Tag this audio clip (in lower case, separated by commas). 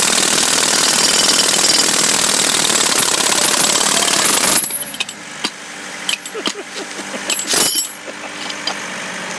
outside, urban or man-made